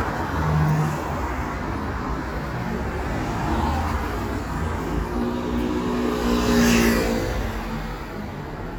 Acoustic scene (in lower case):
street